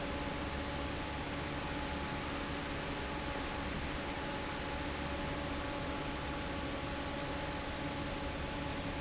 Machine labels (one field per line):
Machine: fan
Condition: normal